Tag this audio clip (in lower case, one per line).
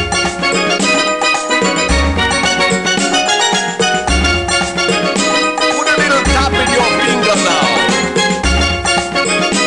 steelpan
music